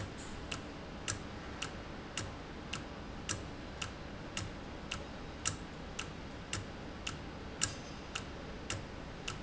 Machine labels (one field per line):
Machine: valve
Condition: normal